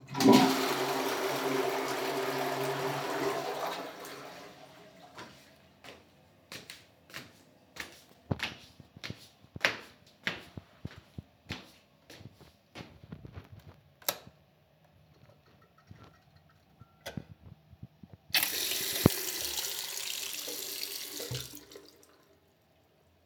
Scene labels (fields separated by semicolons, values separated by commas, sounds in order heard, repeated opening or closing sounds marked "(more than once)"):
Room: bathroom; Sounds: toilet flushing, footsteps, light switch, running water